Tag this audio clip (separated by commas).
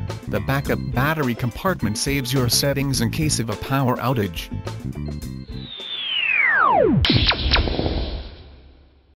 Speech, Music